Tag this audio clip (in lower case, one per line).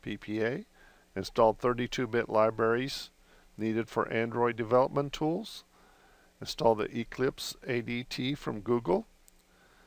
speech